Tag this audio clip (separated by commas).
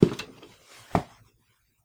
footsteps